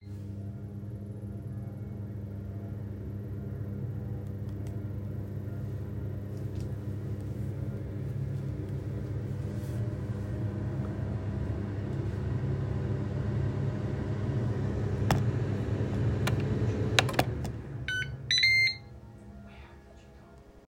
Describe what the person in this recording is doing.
When I started the microwave, the church bell rang. The microwave beeps are clearly audible while moving the phone around.